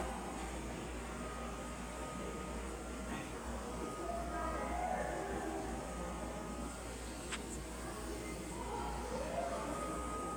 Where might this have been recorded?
in a subway station